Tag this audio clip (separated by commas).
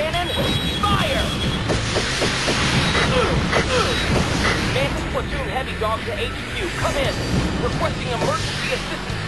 Speech, Music